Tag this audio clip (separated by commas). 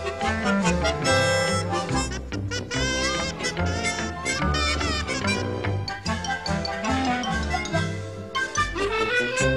Music, Funny music